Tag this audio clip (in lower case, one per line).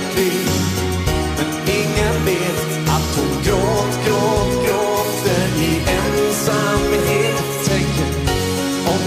music
singing